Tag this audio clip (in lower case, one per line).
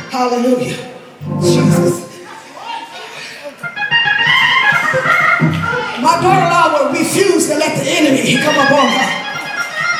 speech
music